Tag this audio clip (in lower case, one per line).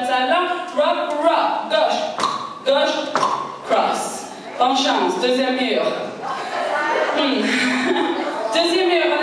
footsteps
speech